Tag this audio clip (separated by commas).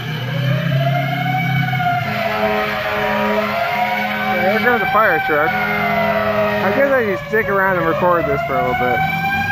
Vehicle, Speech, outside, urban or man-made, Police car (siren)